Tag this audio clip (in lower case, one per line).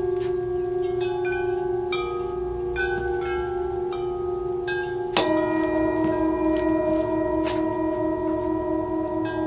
tubular bells